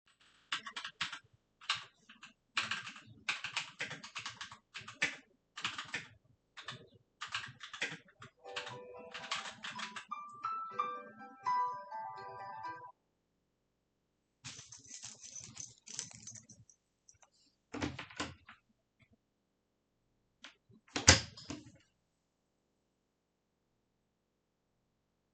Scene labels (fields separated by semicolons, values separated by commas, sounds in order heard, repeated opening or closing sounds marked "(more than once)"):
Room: bedroom; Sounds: keyboard typing, phone ringing, keys, door (more than once)